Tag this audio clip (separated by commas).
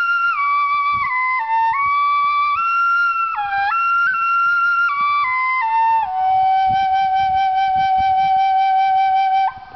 Flute, Music, Musical instrument, Wind instrument